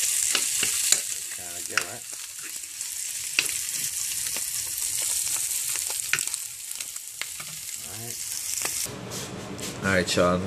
A sizzle sound of cooking